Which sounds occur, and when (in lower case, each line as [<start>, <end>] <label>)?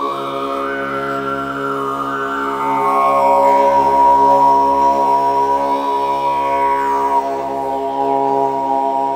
[0.00, 9.15] music